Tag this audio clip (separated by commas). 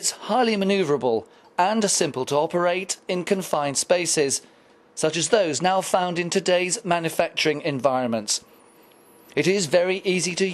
Speech